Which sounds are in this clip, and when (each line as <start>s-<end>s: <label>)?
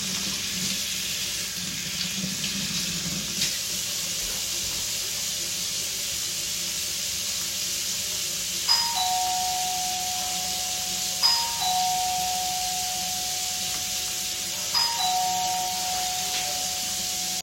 0.0s-17.4s: running water
8.6s-17.4s: bell ringing